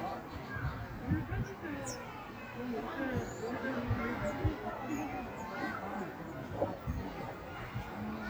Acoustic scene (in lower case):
park